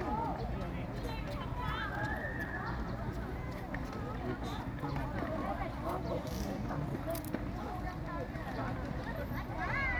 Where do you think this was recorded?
in a park